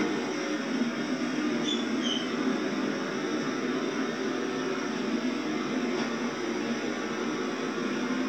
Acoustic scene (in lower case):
subway train